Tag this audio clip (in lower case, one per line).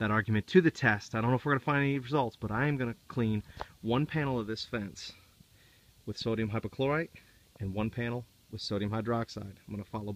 speech